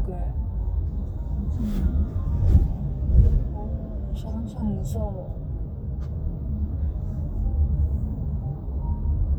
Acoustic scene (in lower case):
car